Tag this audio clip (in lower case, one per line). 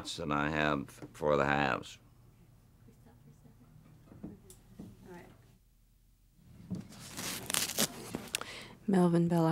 speech
inside a small room
silence